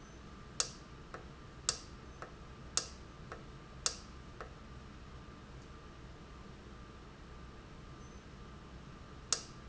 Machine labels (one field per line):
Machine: valve